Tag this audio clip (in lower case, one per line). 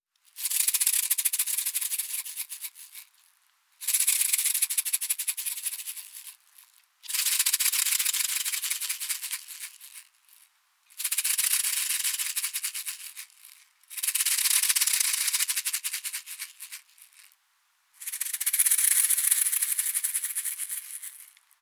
musical instrument
percussion
music
rattle (instrument)